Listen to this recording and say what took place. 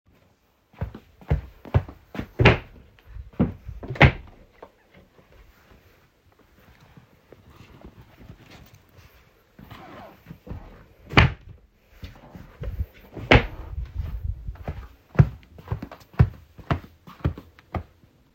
Closet opened and closed while a person searches for clothes and walks.